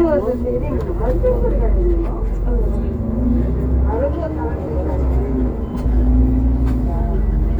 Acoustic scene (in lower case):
bus